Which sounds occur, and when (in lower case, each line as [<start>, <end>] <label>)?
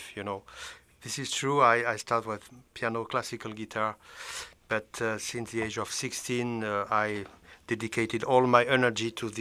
[0.00, 0.40] man speaking
[0.00, 9.40] background noise
[0.48, 0.88] breathing
[1.01, 2.60] man speaking
[2.73, 4.01] man speaking
[3.99, 4.58] breathing
[4.71, 7.31] man speaking
[5.58, 5.66] tap
[7.12, 7.33] generic impact sounds
[7.38, 7.62] breathing
[7.74, 9.40] man speaking